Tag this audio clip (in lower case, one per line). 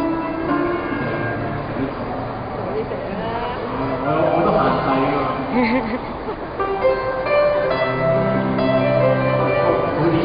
speech
musical instrument
music